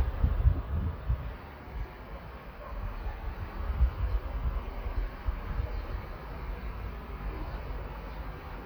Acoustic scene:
park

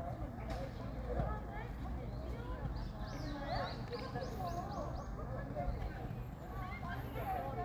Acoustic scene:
park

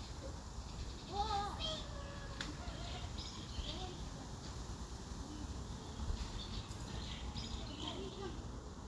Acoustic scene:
park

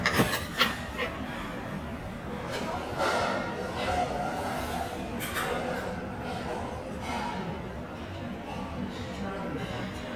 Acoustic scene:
restaurant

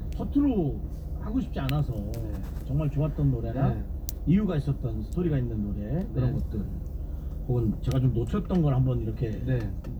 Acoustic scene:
car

